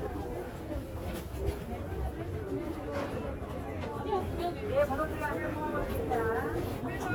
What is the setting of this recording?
crowded indoor space